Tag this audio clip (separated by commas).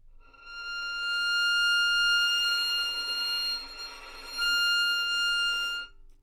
Music, Musical instrument, Bowed string instrument